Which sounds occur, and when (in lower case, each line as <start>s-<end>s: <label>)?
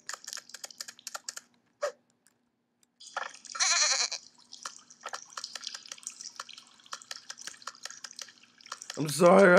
0.0s-1.7s: liquid
0.0s-9.5s: mechanisms
0.1s-1.5s: computer keyboard
1.1s-1.3s: drip
1.8s-2.0s: sound effect
2.1s-2.3s: computer keyboard
2.8s-2.9s: computer keyboard
2.9s-9.5s: liquid
3.2s-3.4s: computer keyboard
3.5s-4.2s: bleat
4.6s-6.5s: computer keyboard
7.0s-8.3s: computer keyboard
8.7s-9.5s: computer keyboard
9.0s-9.5s: male speech